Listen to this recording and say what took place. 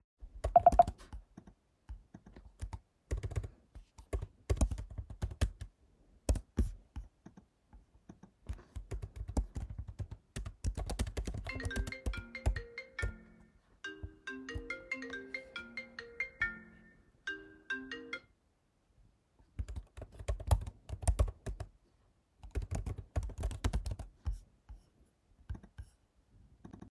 I was typing on my laptop when my phone started ringing. I declined the call and continued typing.